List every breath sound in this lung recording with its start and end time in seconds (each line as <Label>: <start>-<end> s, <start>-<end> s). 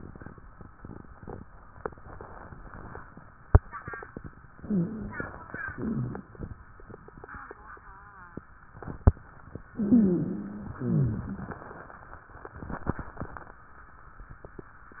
Inhalation: 4.55-5.29 s, 9.75-10.80 s
Exhalation: 5.71-6.28 s, 10.76-11.59 s
Rhonchi: 4.55-5.29 s, 5.71-6.28 s, 9.77-10.70 s, 10.76-11.59 s